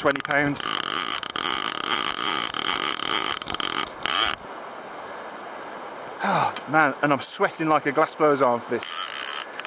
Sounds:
Stream, Speech

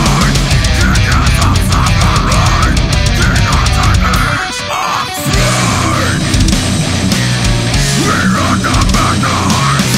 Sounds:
Music

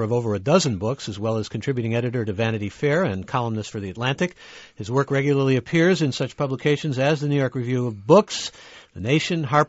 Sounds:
Speech

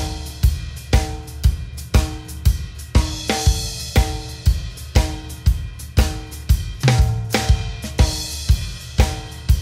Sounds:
playing bass drum

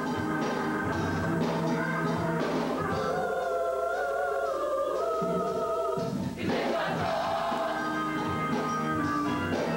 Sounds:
Music

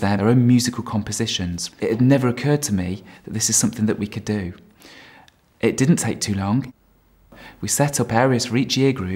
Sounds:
Speech

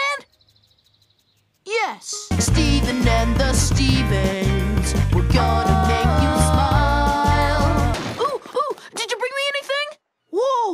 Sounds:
Speech, Music

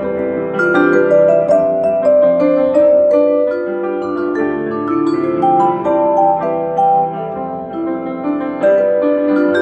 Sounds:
playing vibraphone

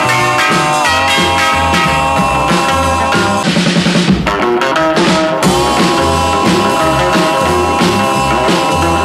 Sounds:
Psychedelic rock, Music

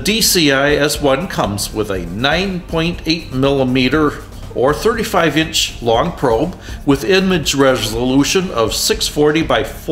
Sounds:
Music, Speech

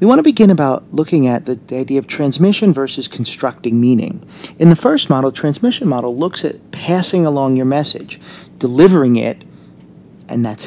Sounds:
Speech

